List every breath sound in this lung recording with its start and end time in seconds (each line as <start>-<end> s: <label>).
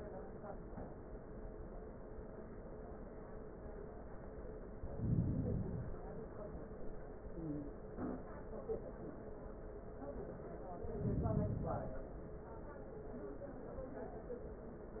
4.67-6.17 s: inhalation
10.78-12.28 s: inhalation